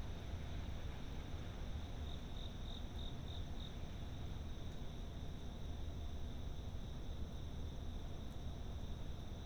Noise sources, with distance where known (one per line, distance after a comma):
background noise